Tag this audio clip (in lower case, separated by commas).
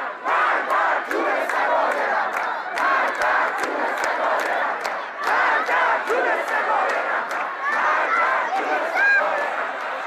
speech